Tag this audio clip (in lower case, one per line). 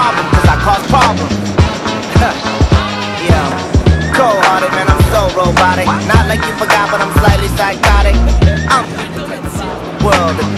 music